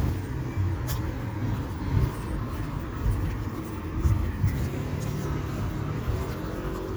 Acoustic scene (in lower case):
street